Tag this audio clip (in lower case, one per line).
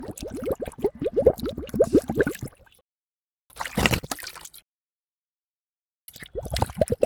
water
liquid